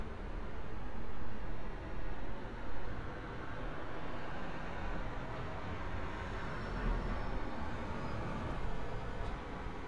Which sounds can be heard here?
medium-sounding engine